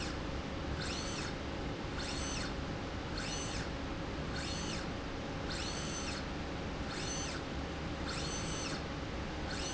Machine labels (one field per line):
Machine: slide rail